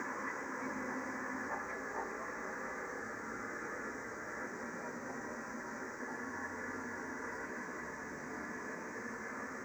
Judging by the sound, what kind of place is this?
subway train